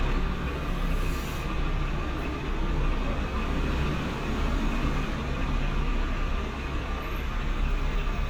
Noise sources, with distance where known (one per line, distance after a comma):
large-sounding engine, near